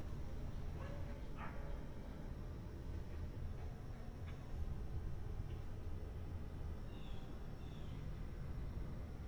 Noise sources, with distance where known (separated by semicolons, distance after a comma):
dog barking or whining, far